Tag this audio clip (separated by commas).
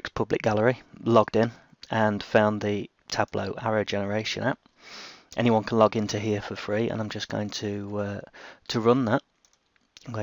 Speech